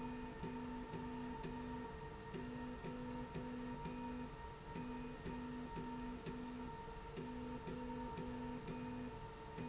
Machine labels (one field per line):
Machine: slide rail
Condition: normal